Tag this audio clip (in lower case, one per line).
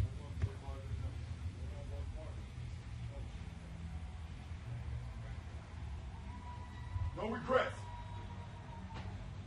male speech
speech